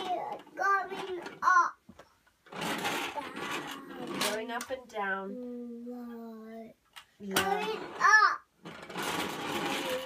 Children are speaking